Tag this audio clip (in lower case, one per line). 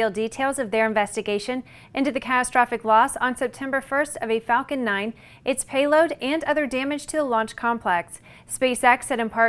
speech